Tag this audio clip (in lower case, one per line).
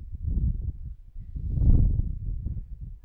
wind